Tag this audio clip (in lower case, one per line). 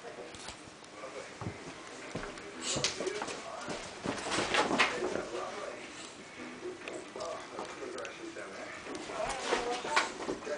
speech